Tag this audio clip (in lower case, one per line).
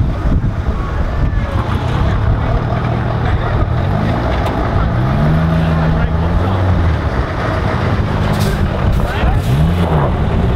vehicle
speech
outside, urban or man-made